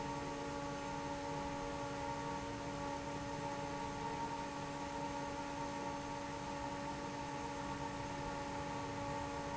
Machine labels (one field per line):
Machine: fan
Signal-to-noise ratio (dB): 0 dB